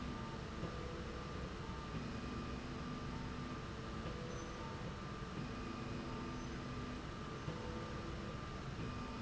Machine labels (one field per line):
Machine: slide rail